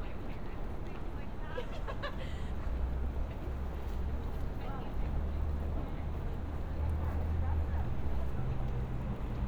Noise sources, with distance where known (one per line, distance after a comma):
person or small group talking, near